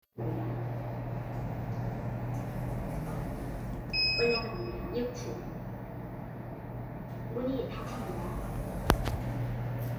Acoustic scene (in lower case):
elevator